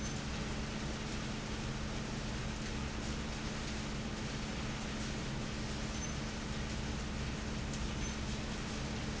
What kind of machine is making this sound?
fan